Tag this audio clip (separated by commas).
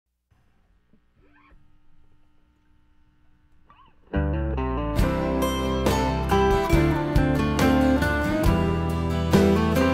Music